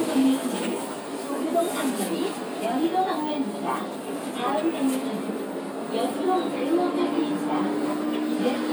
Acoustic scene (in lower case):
bus